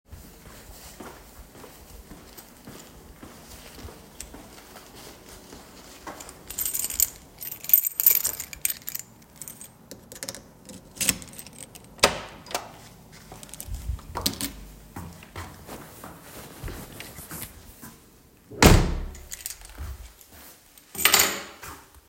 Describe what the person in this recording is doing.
I walked towards the apartment door while holding the key in my hand , I took the key from my pocket ,opened the door, and then close it again .Then I placed the Key on The table